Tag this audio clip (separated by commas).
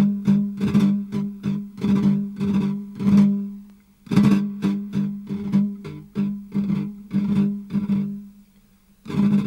Guitar, Music, Plucked string instrument, Flamenco, Musical instrument